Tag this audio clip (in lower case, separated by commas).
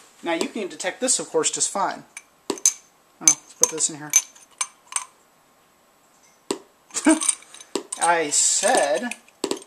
speech, inside a small room